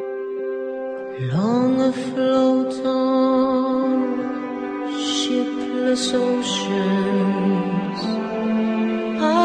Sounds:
Music

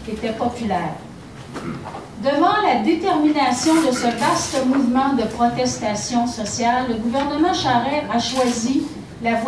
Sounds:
woman speaking, Speech

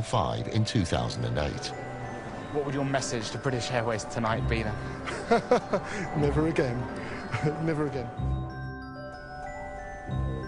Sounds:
Music, Speech, inside a public space

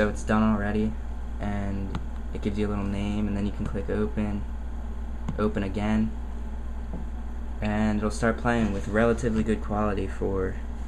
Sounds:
Speech

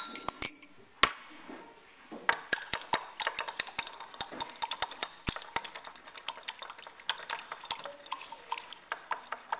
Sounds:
silverware, eating with cutlery

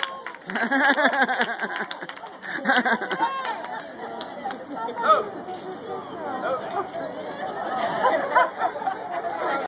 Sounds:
Speech

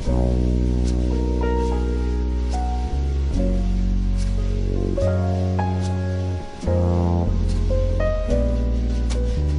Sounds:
Rustling leaves, Music

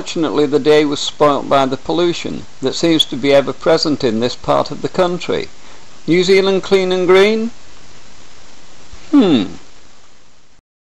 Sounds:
Speech

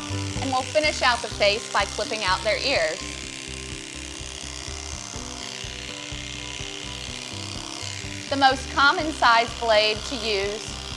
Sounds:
Music, Speech

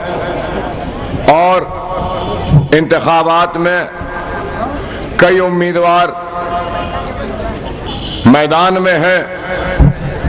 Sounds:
Speech, man speaking, Narration

